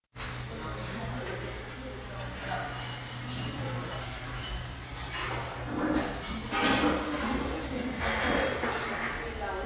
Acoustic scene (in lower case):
restaurant